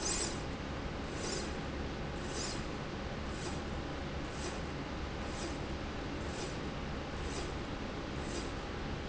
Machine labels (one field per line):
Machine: slide rail